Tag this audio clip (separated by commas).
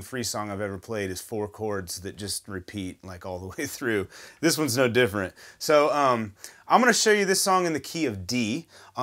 Speech